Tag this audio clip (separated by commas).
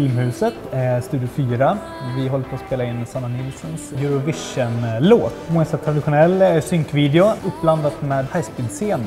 Music, Speech